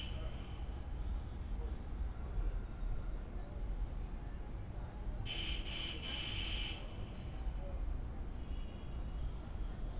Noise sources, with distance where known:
background noise

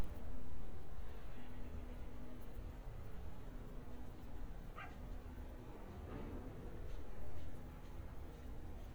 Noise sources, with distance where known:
dog barking or whining, far

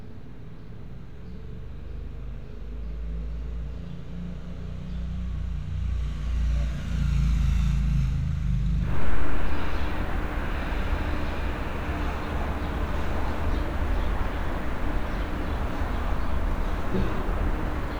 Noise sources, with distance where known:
engine of unclear size

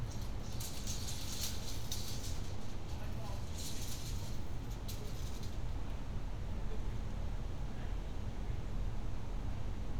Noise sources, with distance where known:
person or small group talking, far

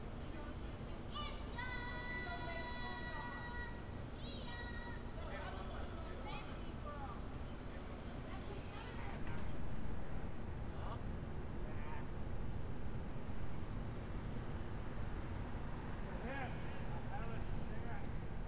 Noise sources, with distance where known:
person or small group talking; person or small group shouting

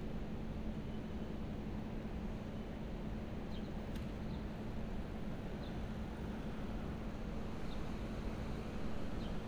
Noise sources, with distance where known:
background noise

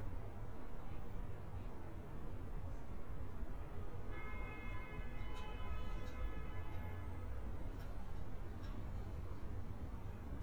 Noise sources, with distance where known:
unidentified impact machinery; car horn, far; person or small group talking, far

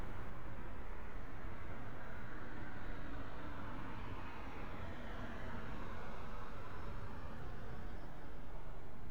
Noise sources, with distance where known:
engine of unclear size

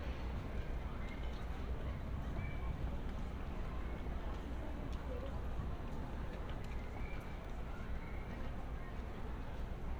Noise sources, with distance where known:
unidentified human voice

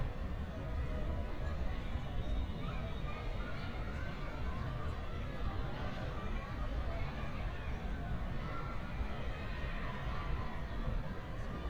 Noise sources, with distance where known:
large crowd, far

